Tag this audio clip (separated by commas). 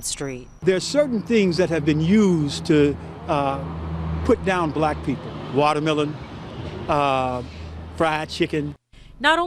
Speech